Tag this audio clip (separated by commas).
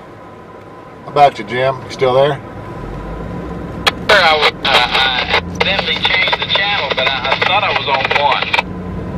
Vehicle, Speech, Car, Radio